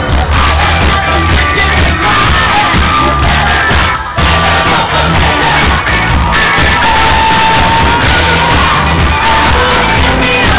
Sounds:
Sound effect, Music

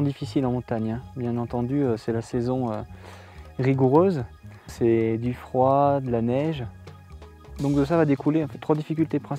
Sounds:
Speech, Music

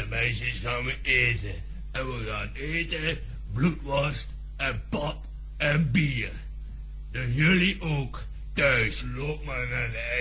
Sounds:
Speech

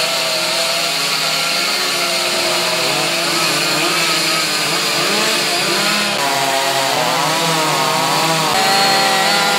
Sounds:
Power tool, Tools

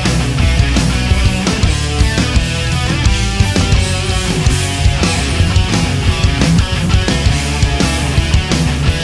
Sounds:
Music

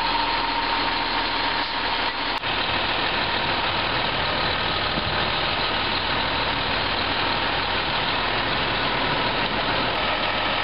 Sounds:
Truck, Reversing beeps, Vehicle

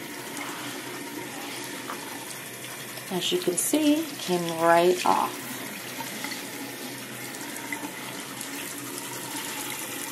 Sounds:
Fill (with liquid), Speech, inside a small room

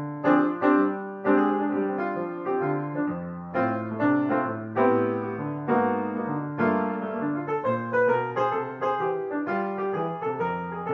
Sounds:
Music, Keyboard (musical)

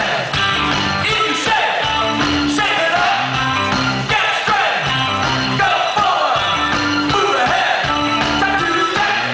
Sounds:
Music

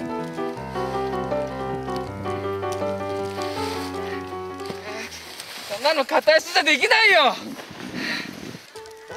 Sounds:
skiing

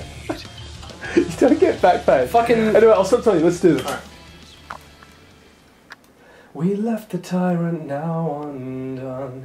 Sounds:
Speech

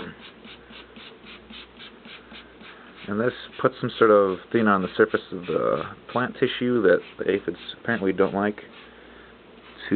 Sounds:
Speech, Spray

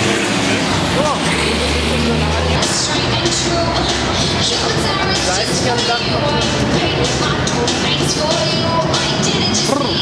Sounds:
Speech, Music

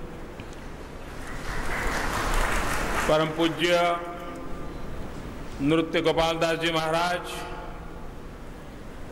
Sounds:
Speech, man speaking, monologue

